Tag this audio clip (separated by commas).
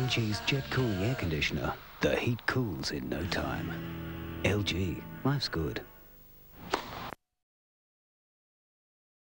Music, Speech, Television